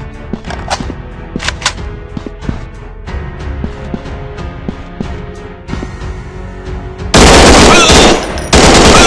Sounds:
machine gun shooting

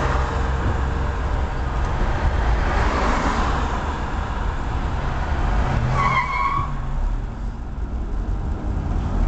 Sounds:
Car, Vehicle

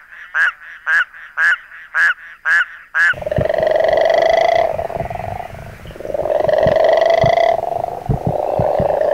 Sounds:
frog croaking

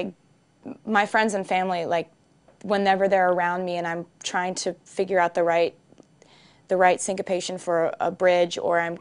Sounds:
Speech

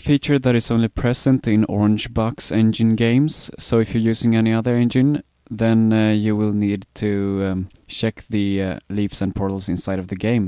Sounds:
Speech

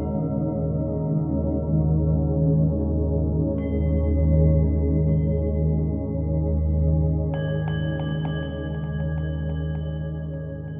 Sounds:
Music, New-age music

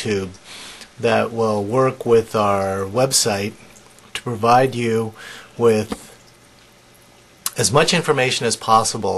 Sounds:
Speech

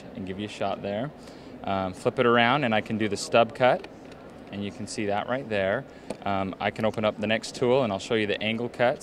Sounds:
Speech

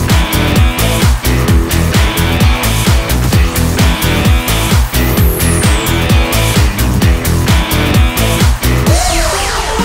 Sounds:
Music

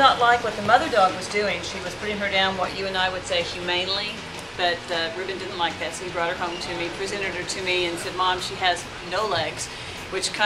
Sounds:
Speech

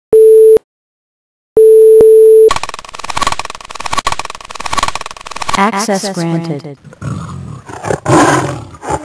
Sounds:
Roar, Busy signal, Speech

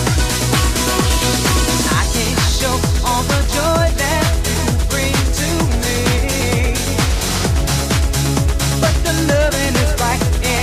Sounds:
Music

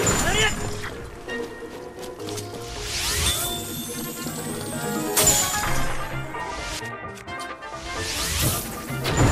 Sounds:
swoosh

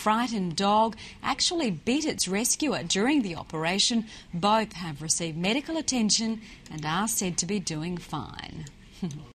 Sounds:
Speech

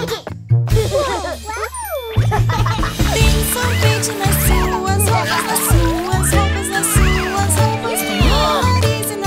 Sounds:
splashing water

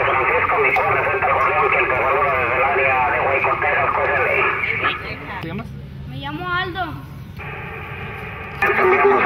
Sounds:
Radio, Speech

